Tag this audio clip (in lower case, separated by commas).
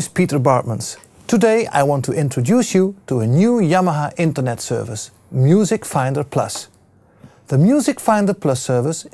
speech